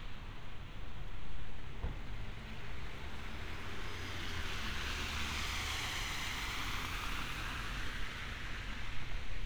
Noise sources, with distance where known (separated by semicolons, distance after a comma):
engine of unclear size